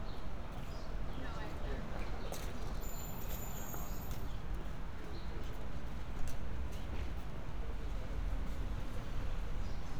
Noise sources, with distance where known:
background noise

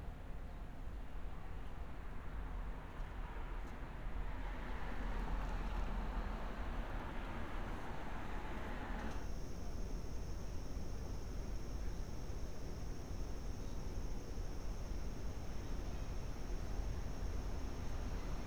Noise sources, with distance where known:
engine of unclear size

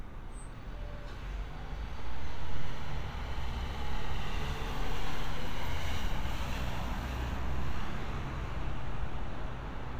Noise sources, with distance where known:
large-sounding engine

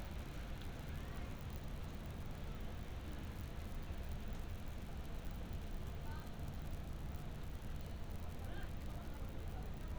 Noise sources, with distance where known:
person or small group talking

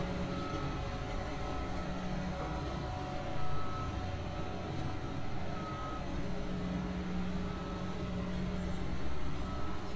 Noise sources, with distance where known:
reverse beeper, far

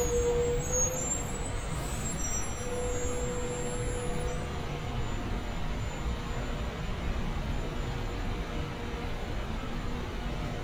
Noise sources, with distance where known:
large-sounding engine, near

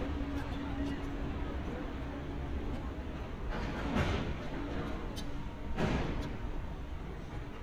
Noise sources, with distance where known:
engine of unclear size
non-machinery impact
person or small group talking

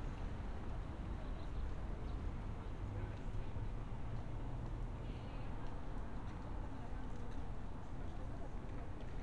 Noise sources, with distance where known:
background noise

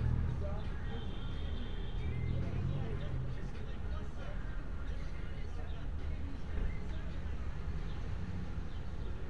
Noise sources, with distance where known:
medium-sounding engine
car horn, far
music from a fixed source, far

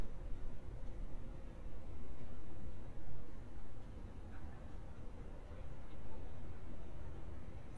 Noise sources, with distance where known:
background noise

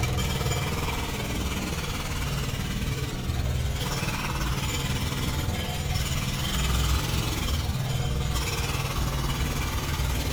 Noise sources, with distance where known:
jackhammer

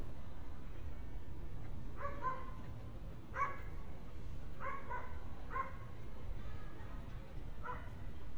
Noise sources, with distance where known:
dog barking or whining, far

